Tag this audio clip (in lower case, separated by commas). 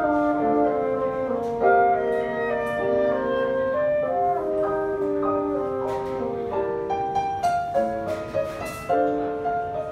playing bassoon